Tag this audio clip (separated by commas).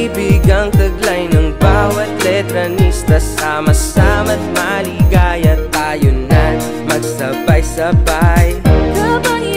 Music